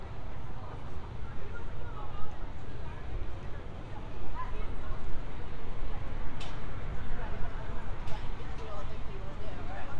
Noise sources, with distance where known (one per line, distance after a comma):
person or small group talking, far